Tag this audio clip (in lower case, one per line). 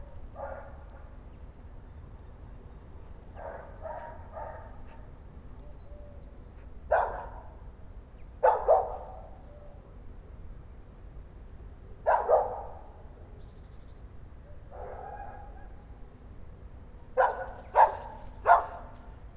bark
pets
dog
animal